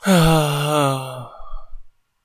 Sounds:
human voice, sigh

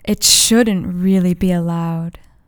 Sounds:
speech, woman speaking, human voice

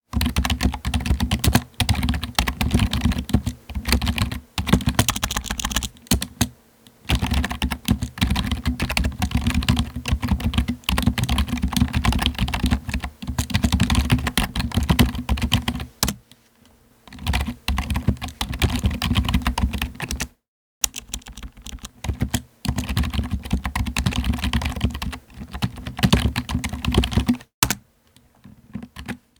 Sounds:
typing, home sounds, computer keyboard

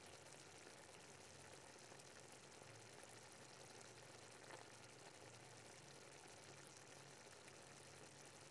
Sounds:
boiling, liquid

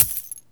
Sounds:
coin (dropping), home sounds

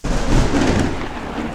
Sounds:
thunder, thunderstorm

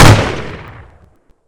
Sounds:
gunfire, explosion

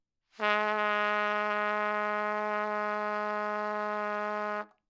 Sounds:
brass instrument, musical instrument, music, trumpet

